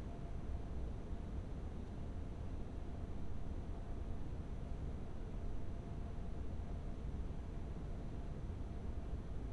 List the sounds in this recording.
background noise